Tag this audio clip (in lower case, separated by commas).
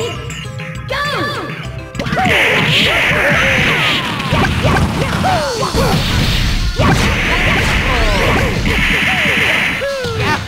speech, music